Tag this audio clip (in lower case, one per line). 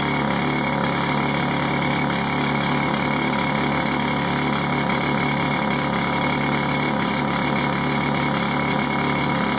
tools
jackhammer